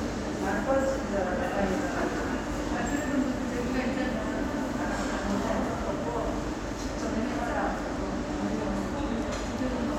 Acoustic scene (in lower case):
subway station